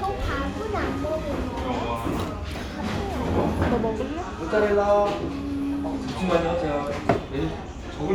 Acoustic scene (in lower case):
restaurant